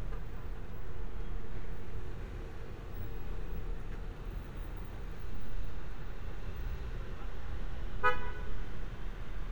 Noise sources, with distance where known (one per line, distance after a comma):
car horn, near